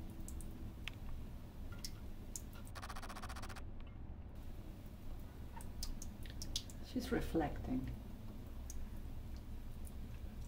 Water running with people speaking in the background